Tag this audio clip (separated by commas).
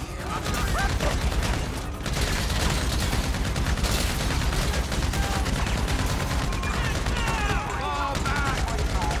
machine gun shooting